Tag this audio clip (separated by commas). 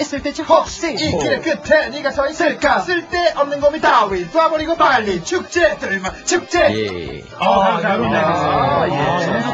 Music, Speech